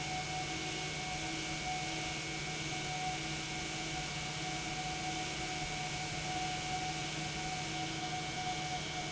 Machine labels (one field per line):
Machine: pump